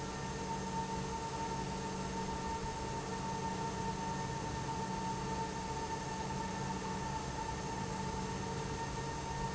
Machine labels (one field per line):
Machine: pump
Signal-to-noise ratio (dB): -6 dB